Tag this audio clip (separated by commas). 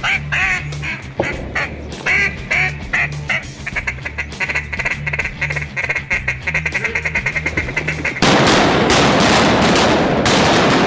Music, Quack